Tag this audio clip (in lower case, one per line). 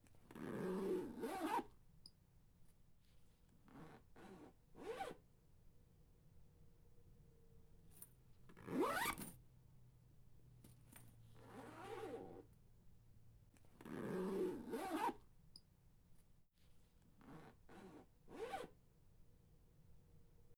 domestic sounds
zipper (clothing)